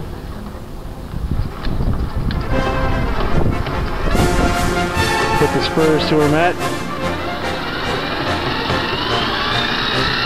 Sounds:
Speech, Music, outside, urban or man-made

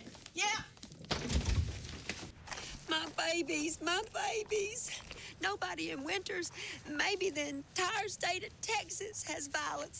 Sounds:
Speech

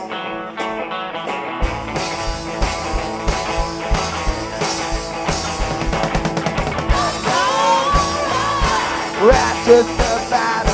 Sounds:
Music, Psychedelic rock

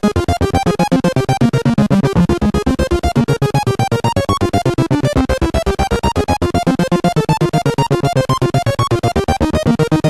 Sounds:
Music

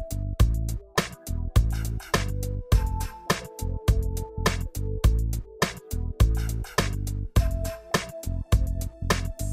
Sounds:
Music

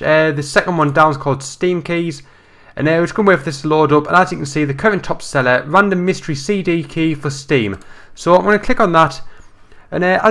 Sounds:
Speech

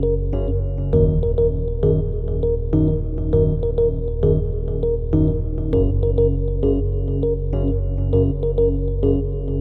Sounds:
Music

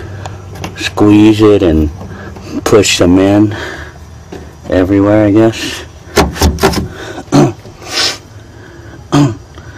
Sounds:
Speech

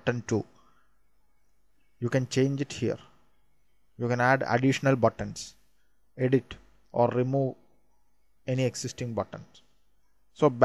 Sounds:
Speech

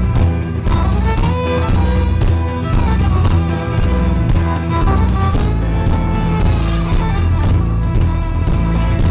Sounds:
fiddle, Bowed string instrument

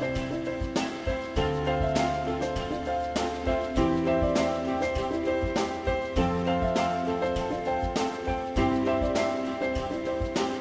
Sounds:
Music

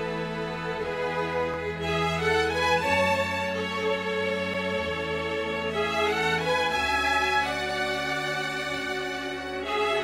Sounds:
Music

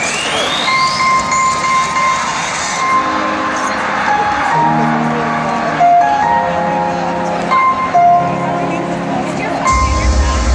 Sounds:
Music, Speech

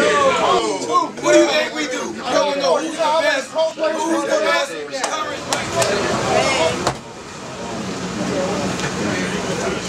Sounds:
Speech

